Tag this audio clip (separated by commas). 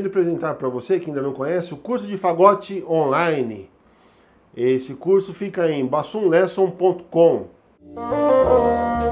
playing bassoon